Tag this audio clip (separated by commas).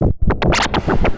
Scratching (performance technique), Musical instrument, Music